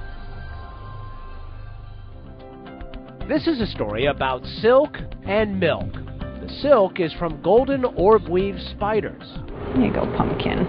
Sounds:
speech, music

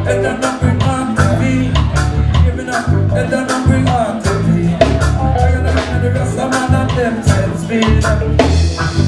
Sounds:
music

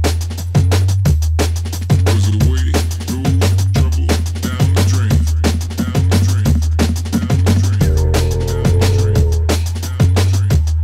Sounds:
drum and bass, electronic music, music

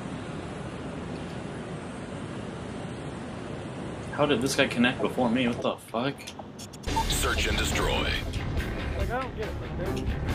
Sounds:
speech babble

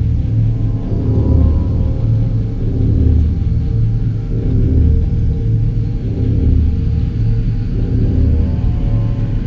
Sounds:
music, inside a small room

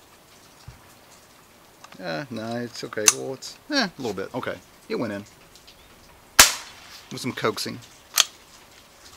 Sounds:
cap gun shooting

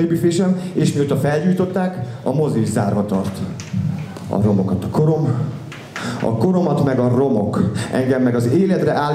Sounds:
speech

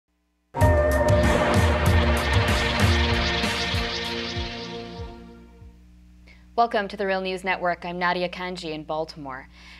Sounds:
music, speech

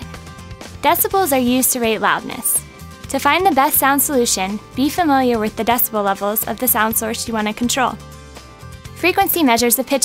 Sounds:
speech, music

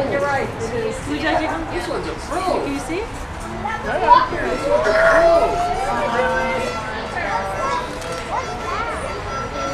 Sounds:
speech, music

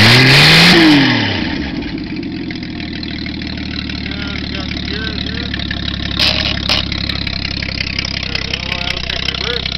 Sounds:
idling, engine, medium engine (mid frequency), speech

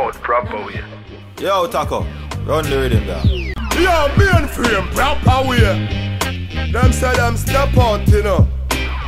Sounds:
music, speech

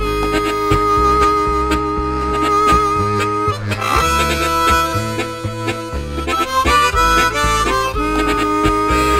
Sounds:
playing harmonica

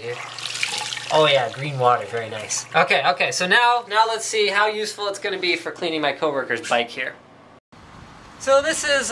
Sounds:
inside a small room, speech, sink (filling or washing), outside, urban or man-made

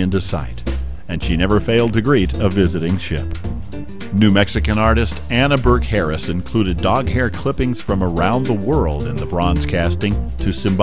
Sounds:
speech, music

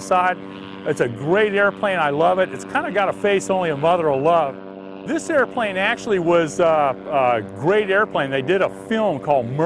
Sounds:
speech

